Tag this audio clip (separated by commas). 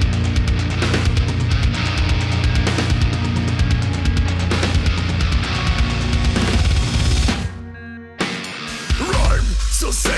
Music, Singing, inside a large room or hall, Angry music